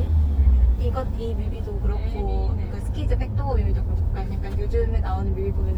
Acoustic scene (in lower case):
car